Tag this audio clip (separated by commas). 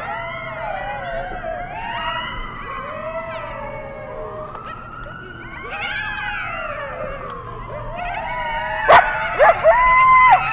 coyote howling